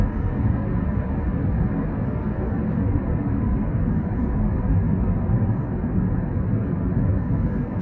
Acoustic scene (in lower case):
car